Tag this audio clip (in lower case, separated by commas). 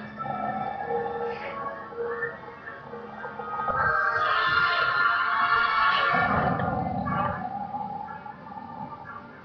pets, music, whimper (dog), animal, dog